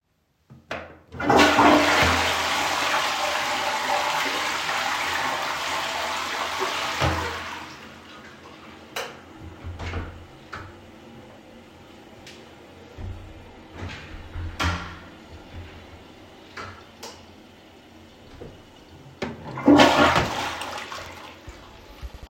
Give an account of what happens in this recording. I flushed the toilet, turned the light off, walked out and closed the door, came back in again, turned the light on and flushed again shortly.